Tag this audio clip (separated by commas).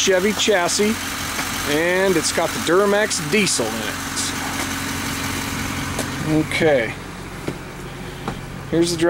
Motor vehicle (road), Bus, Speech, Vehicle